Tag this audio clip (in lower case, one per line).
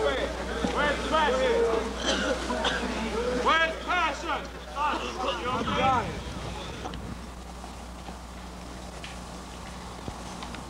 speech